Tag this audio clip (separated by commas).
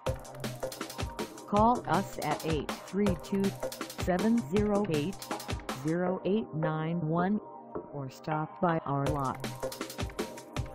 Music, Speech